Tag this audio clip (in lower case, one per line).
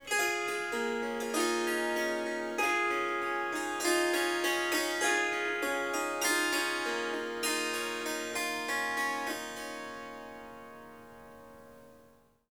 harp
music
musical instrument